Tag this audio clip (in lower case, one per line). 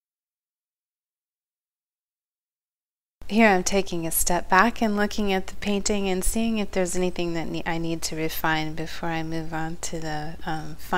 speech